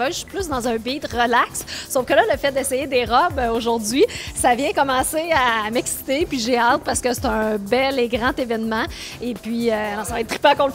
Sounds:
Speech, Music

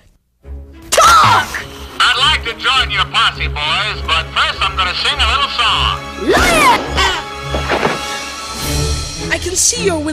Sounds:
Music, Speech

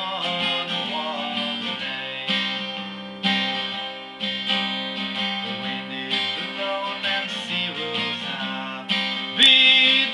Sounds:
Plucked string instrument, Music, Strum, Guitar, Acoustic guitar, Musical instrument

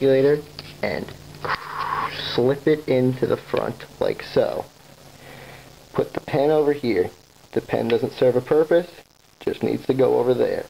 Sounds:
Speech

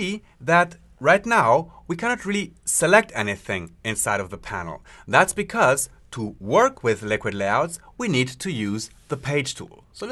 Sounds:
Speech

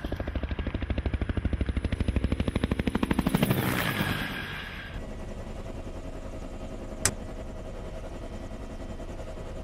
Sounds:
Idling, Heavy engine (low frequency), Engine, Vehicle

